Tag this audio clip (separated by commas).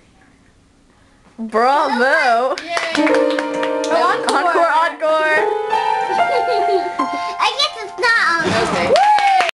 Speech, Music